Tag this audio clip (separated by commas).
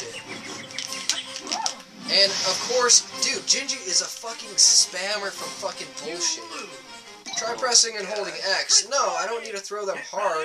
Music, Speech